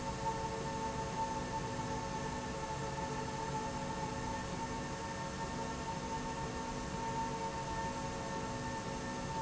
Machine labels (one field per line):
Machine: slide rail